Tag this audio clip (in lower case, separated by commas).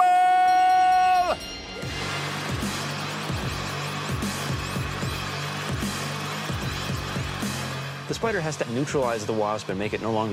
speech, music